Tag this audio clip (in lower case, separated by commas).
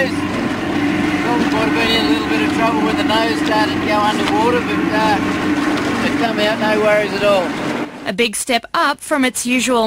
water vehicle, motorboat